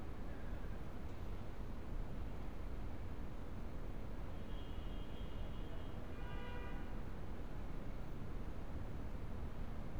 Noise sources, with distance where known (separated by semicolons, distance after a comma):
car horn, far